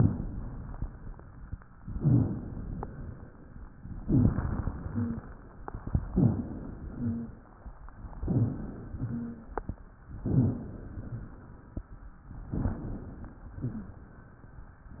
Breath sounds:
0.00-1.54 s: inhalation
1.86-3.40 s: inhalation
1.92-2.39 s: rhonchi
4.04-4.52 s: rhonchi
4.06-5.28 s: inhalation
4.74-5.22 s: wheeze
6.13-6.60 s: rhonchi
6.13-7.34 s: inhalation
6.87-7.34 s: wheeze
8.23-8.71 s: rhonchi
8.23-9.54 s: inhalation
9.07-9.54 s: wheeze
10.23-11.54 s: inhalation
10.28-10.76 s: rhonchi
12.52-14.06 s: inhalation
13.58-14.06 s: wheeze

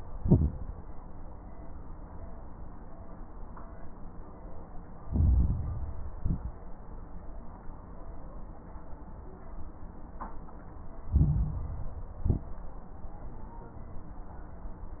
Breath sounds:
0.00-0.74 s: exhalation
0.00-0.74 s: crackles
5.02-6.10 s: inhalation
5.02-6.10 s: crackles
6.14-6.76 s: exhalation
6.14-6.76 s: crackles
11.04-12.12 s: inhalation
11.04-12.12 s: crackles
12.18-12.81 s: exhalation
12.18-12.81 s: crackles

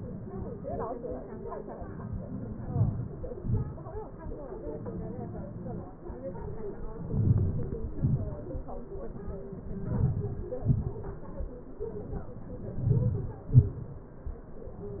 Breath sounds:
2.72-3.22 s: inhalation
3.40-3.77 s: inhalation
7.15-7.87 s: inhalation
8.02-8.41 s: exhalation
9.96-10.38 s: inhalation
10.67-10.96 s: exhalation
12.91-13.35 s: inhalation
13.54-13.95 s: exhalation

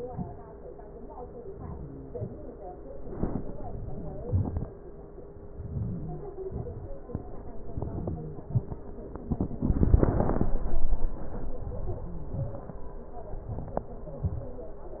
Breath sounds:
5.62-6.26 s: inhalation
6.46-6.90 s: exhalation
7.71-8.38 s: inhalation
8.50-8.96 s: exhalation
11.61-12.35 s: inhalation
12.47-12.95 s: exhalation

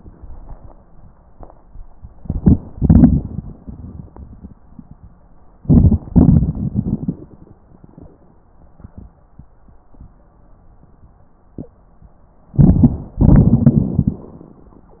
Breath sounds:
2.25-2.57 s: inhalation
2.73-4.58 s: exhalation
5.61-6.00 s: inhalation
6.15-7.58 s: exhalation
12.61-13.15 s: inhalation
13.20-14.23 s: exhalation

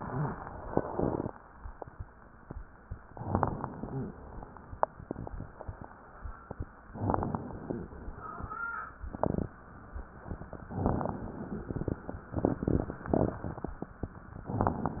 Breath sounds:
3.14-4.14 s: inhalation
3.14-4.15 s: crackles
6.94-7.91 s: inhalation
6.94-7.91 s: crackles
10.74-11.97 s: inhalation
10.74-11.97 s: crackles
14.48-15.00 s: inhalation
14.48-15.00 s: crackles

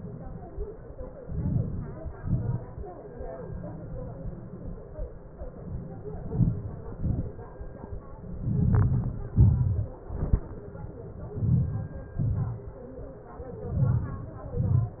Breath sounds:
1.26-1.98 s: inhalation
1.26-1.98 s: crackles
2.25-2.80 s: exhalation
2.25-2.80 s: crackles
6.27-6.83 s: inhalation
6.35-6.81 s: crackles
7.02-7.34 s: exhalation
7.02-7.34 s: crackles
11.34-11.89 s: inhalation
11.34-11.89 s: crackles
12.25-12.71 s: exhalation
12.25-12.71 s: crackles
13.84-14.30 s: inhalation
13.84-14.30 s: crackles
14.55-15.00 s: exhalation
14.55-15.00 s: crackles

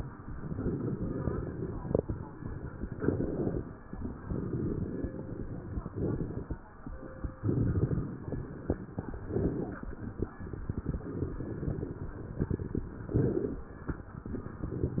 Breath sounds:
0.24-2.88 s: inhalation
2.86-3.87 s: exhalation
3.90-5.87 s: inhalation
5.92-6.80 s: exhalation
6.81-8.96 s: inhalation
8.99-10.44 s: exhalation
10.49-12.68 s: inhalation
12.69-14.24 s: exhalation

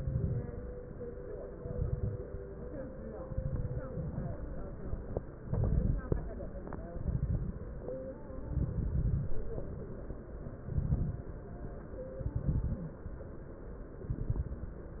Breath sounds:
0.00-0.62 s: exhalation
0.00-0.62 s: crackles
1.56-2.31 s: exhalation
1.56-2.31 s: crackles
3.17-3.93 s: exhalation
3.17-3.93 s: crackles
3.93-4.54 s: inhalation
5.43-6.25 s: exhalation
5.43-6.25 s: crackles
6.91-7.73 s: exhalation
6.91-7.73 s: crackles
8.49-9.31 s: exhalation
8.49-9.31 s: crackles
10.66-11.33 s: exhalation
10.66-11.33 s: crackles
12.18-12.85 s: exhalation
12.18-12.85 s: crackles
14.06-14.73 s: exhalation
14.06-14.73 s: crackles

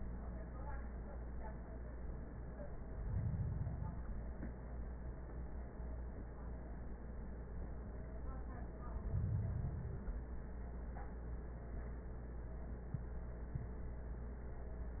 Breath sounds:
2.76-4.26 s: inhalation
8.81-10.31 s: inhalation

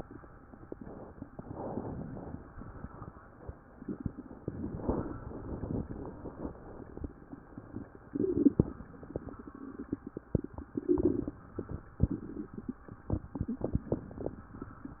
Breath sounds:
0.60-1.36 s: inhalation
1.39-2.52 s: exhalation
4.46-5.85 s: inhalation
5.89-7.15 s: exhalation

